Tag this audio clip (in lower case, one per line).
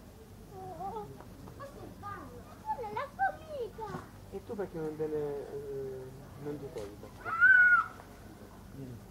speech